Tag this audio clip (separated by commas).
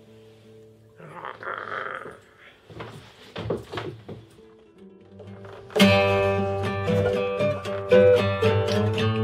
Acoustic guitar, Music